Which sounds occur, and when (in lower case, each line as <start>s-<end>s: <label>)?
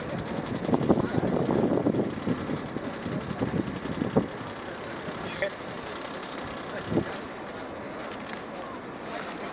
0.0s-0.8s: male speech
0.0s-9.5s: mechanisms
1.0s-3.3s: wind noise (microphone)
1.8s-2.1s: male speech
3.6s-5.1s: wind noise (microphone)
6.1s-6.4s: male speech
7.6s-8.0s: male speech
7.7s-7.9s: wind noise (microphone)
9.0s-9.2s: generic impact sounds
9.4s-9.5s: generic impact sounds